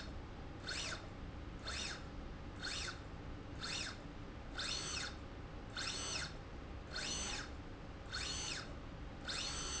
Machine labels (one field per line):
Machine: slide rail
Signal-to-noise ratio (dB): 6 dB